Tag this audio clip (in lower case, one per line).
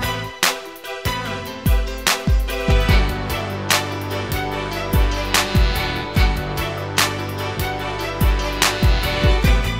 music